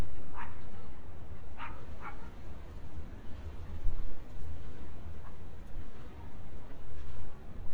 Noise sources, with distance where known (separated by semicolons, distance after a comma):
dog barking or whining, near